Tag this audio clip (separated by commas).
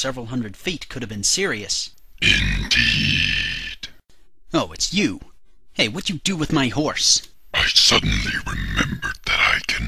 Speech